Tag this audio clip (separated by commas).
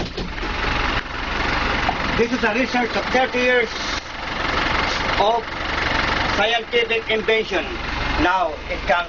Speech